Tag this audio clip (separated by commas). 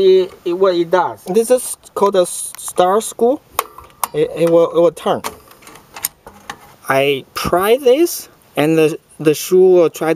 Speech, outside, urban or man-made